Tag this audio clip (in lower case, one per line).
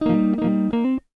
music
musical instrument
guitar
plucked string instrument